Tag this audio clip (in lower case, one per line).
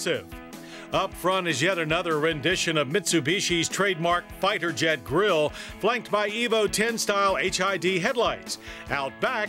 music
speech